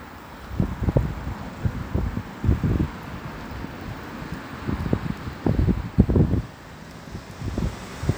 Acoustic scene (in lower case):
street